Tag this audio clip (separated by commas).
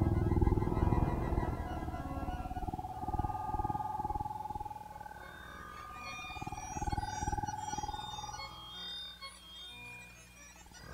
Music, Synthesizer